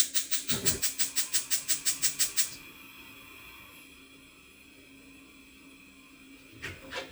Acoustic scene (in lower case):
kitchen